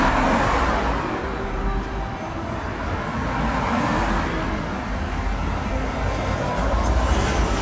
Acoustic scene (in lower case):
street